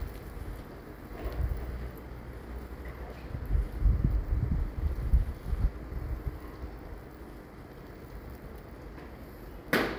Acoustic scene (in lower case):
residential area